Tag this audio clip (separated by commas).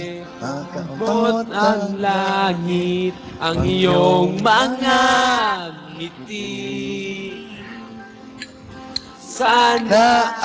Male singing